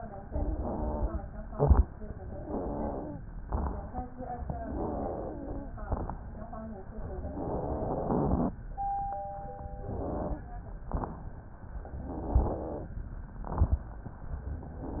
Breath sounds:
0.22-1.18 s: inhalation
0.22-1.18 s: wheeze
1.48-1.88 s: exhalation
1.48-1.88 s: crackles
2.32-3.22 s: inhalation
2.32-3.22 s: wheeze
3.44-3.77 s: crackles
3.44-3.98 s: exhalation
4.70-5.67 s: inhalation
4.70-5.67 s: wheeze
5.84-6.21 s: exhalation
5.84-6.21 s: crackles
7.12-8.55 s: inhalation
7.12-8.55 s: wheeze
9.78-10.51 s: inhalation
9.78-10.51 s: wheeze
10.84-11.30 s: exhalation
10.84-11.30 s: crackles
12.04-12.88 s: inhalation
12.04-12.88 s: wheeze
13.44-13.90 s: exhalation
13.44-13.90 s: crackles

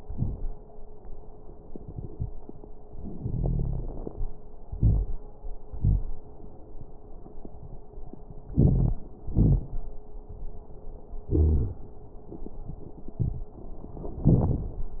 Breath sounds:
3.01-4.19 s: inhalation
3.16-4.04 s: wheeze
4.75-5.17 s: exhalation
4.75-5.17 s: wheeze
8.54-8.99 s: inhalation
8.54-8.99 s: wheeze
9.30-9.64 s: exhalation
9.30-9.64 s: wheeze
11.29-11.81 s: wheeze

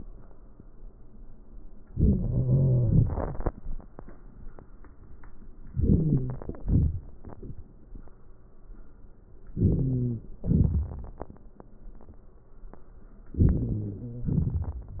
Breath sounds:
1.94-3.18 s: wheeze
5.81-6.38 s: wheeze
9.57-10.26 s: wheeze
13.40-14.64 s: wheeze

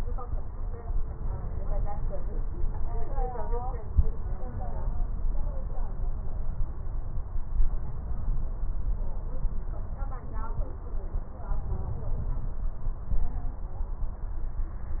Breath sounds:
11.43-12.56 s: inhalation

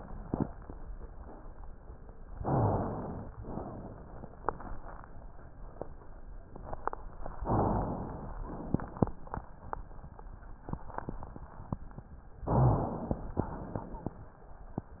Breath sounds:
2.39-3.34 s: inhalation
3.38-4.33 s: exhalation
7.46-8.41 s: inhalation
8.41-9.20 s: exhalation
12.48-13.44 s: inhalation
13.43-14.23 s: exhalation

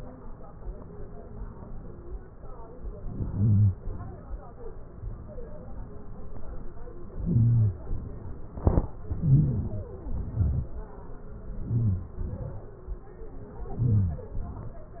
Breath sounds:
9.28-9.85 s: inhalation
10.14-10.65 s: exhalation
11.65-12.09 s: inhalation
12.29-12.64 s: exhalation
13.86-14.39 s: inhalation
14.57-14.95 s: exhalation

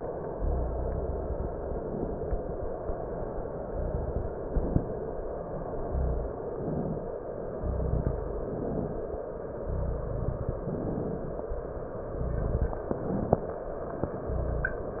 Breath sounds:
0.28-1.82 s: exhalation
1.89-2.74 s: inhalation
3.67-4.37 s: exhalation
4.43-5.13 s: inhalation
5.72-6.41 s: exhalation
6.46-7.25 s: inhalation
7.56-8.43 s: exhalation
8.46-9.33 s: inhalation
9.65-10.53 s: exhalation
10.61-11.49 s: inhalation
12.03-12.82 s: exhalation
12.84-13.64 s: inhalation
14.22-15.00 s: exhalation

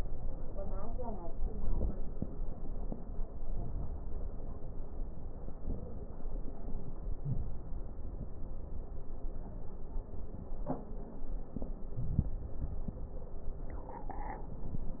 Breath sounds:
3.25-4.48 s: inhalation
3.25-4.48 s: crackles
6.91-8.29 s: inhalation
7.23-7.68 s: wheeze
11.93-13.32 s: inhalation

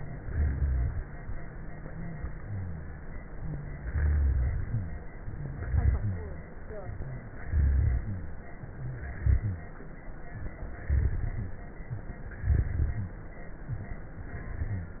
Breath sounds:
0.21-1.01 s: rhonchi
0.23-0.97 s: exhalation
1.78-2.39 s: inhalation
2.39-3.00 s: exhalation
2.41-3.02 s: rhonchi
3.30-3.77 s: inhalation
3.81-4.61 s: rhonchi
3.85-4.53 s: exhalation
5.69-6.43 s: exhalation
5.69-6.43 s: rhonchi
6.87-7.42 s: inhalation
6.87-7.42 s: rhonchi
7.50-8.37 s: rhonchi
7.51-8.39 s: exhalation
8.71-9.22 s: inhalation
9.20-9.71 s: exhalation
9.24-9.72 s: rhonchi
10.30-10.64 s: inhalation
10.30-10.64 s: rhonchi
10.89-11.63 s: rhonchi
10.89-11.67 s: exhalation
11.86-12.20 s: inhalation
11.86-12.20 s: rhonchi
12.47-13.38 s: rhonchi
12.47-13.24 s: exhalation
13.64-14.06 s: inhalation
13.64-14.06 s: rhonchi
14.23-15.00 s: exhalation
14.54-15.00 s: rhonchi

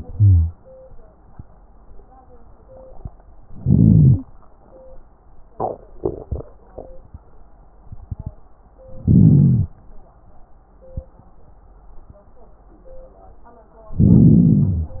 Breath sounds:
0.12-0.53 s: inhalation
0.12-0.53 s: wheeze
3.61-4.28 s: inhalation
3.61-4.28 s: wheeze
9.05-9.74 s: inhalation
9.05-9.74 s: crackles
14.01-14.96 s: inhalation
14.01-14.96 s: crackles

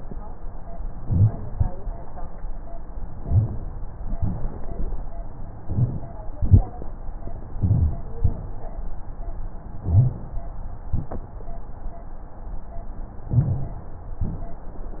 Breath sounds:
0.93-1.46 s: inhalation
0.95-1.48 s: crackles
1.50-2.03 s: exhalation
1.50-2.03 s: crackles
3.13-3.67 s: inhalation
3.13-3.67 s: crackles
4.16-4.69 s: exhalation
4.16-4.69 s: crackles
5.58-6.12 s: inhalation
5.58-6.12 s: crackles
6.34-6.74 s: exhalation
6.34-6.74 s: crackles
7.56-7.96 s: inhalation
7.56-7.96 s: crackles
8.19-8.59 s: exhalation
8.19-8.59 s: crackles
9.84-10.24 s: inhalation
9.84-10.24 s: crackles
13.32-13.93 s: inhalation
13.32-13.93 s: crackles

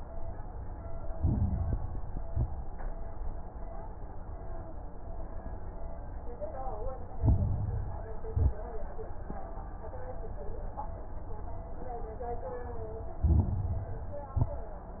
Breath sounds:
0.85-2.12 s: inhalation
0.85-2.12 s: crackles
2.20-2.53 s: exhalation
2.20-2.53 s: crackles
7.11-8.24 s: inhalation
7.11-8.24 s: crackles
8.28-8.61 s: exhalation
8.28-8.61 s: crackles
13.15-14.29 s: inhalation
13.15-14.29 s: crackles
14.33-14.66 s: exhalation
14.33-14.66 s: crackles

